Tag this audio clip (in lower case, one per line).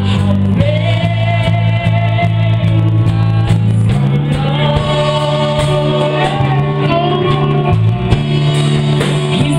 music
female singing